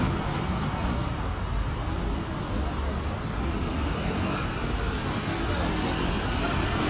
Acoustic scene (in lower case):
street